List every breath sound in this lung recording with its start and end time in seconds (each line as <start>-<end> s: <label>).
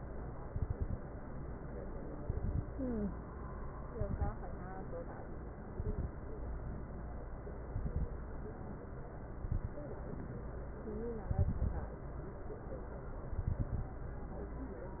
0.45-0.97 s: inhalation
0.45-0.97 s: crackles
2.15-2.66 s: inhalation
2.15-2.66 s: crackles
3.93-4.35 s: inhalation
3.93-4.35 s: crackles
5.72-6.13 s: inhalation
5.72-6.13 s: crackles
7.71-8.13 s: inhalation
7.71-8.13 s: crackles
9.39-9.80 s: inhalation
9.39-9.80 s: crackles
11.31-12.01 s: inhalation
11.31-12.01 s: crackles
13.32-14.02 s: inhalation
13.32-14.02 s: crackles